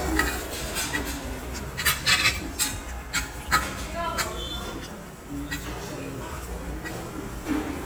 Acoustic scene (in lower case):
restaurant